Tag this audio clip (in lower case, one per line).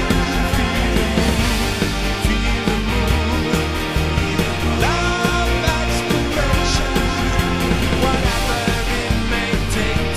independent music
music